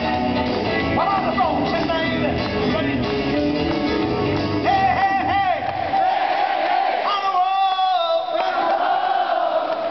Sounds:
music

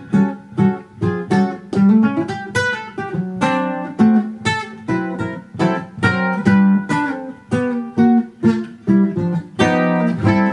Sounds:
ukulele
strum
guitar
plucked string instrument
bowed string instrument
musical instrument
music

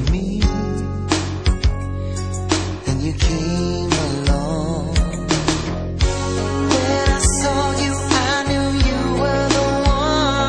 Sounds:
music

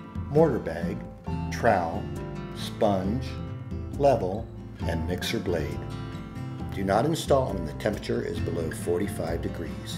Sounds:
music
speech

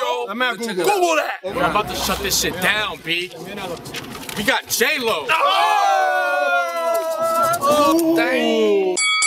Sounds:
speech
outside, urban or man-made

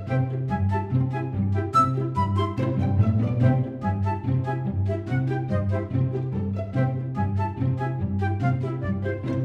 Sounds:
music

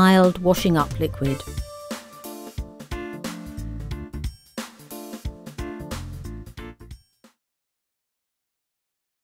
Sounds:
music
speech

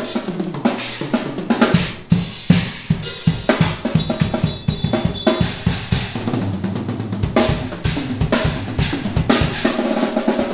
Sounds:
percussion
drum kit
snare drum
drum
rimshot
drum roll
bass drum

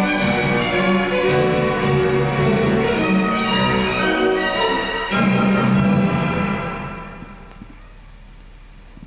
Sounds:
music

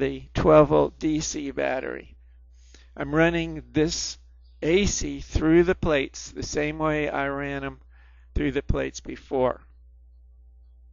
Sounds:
speech

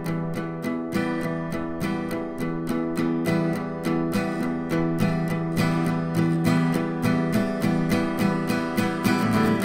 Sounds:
acoustic guitar
strum
musical instrument
plucked string instrument
guitar
music

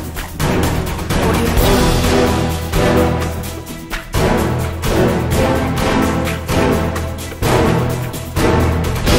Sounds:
music

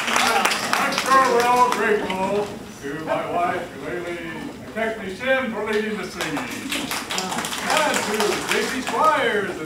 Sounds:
speech

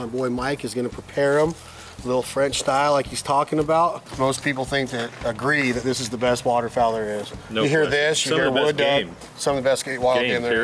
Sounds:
speech

